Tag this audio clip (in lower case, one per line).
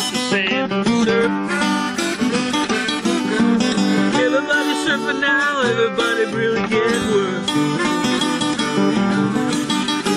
music
plucked string instrument
musical instrument
acoustic guitar
guitar